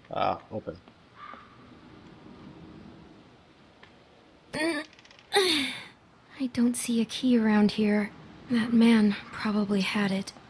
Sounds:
Speech

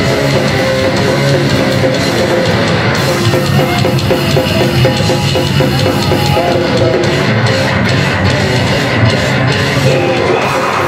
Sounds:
Music

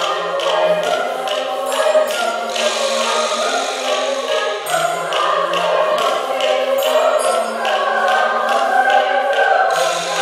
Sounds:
Music, Choir

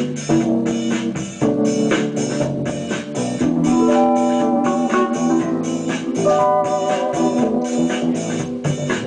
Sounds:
Electric guitar, Plucked string instrument, Acoustic guitar, Music, Musical instrument, Strum

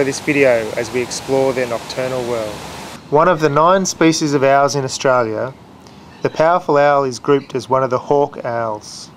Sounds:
Speech

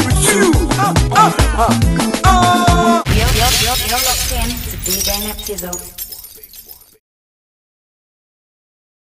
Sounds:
Music, Speech

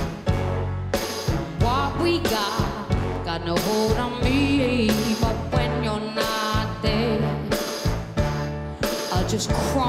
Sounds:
Singing

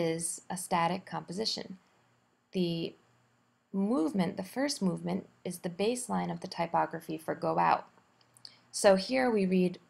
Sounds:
Speech

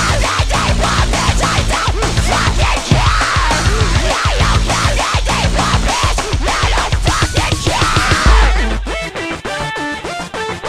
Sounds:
Music, Soundtrack music, Disco

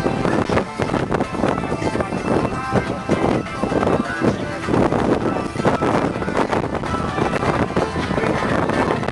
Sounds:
Music, Speech

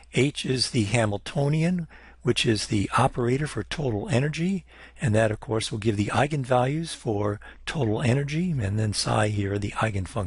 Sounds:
Speech

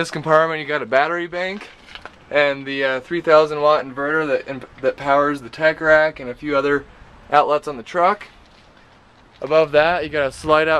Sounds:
Speech, Vehicle

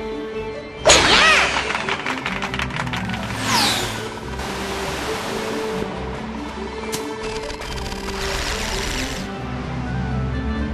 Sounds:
Music

